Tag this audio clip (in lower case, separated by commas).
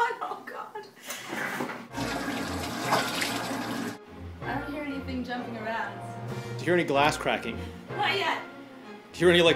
speech, music